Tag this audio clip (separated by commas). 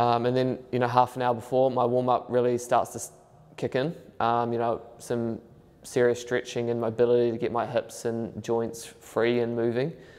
playing squash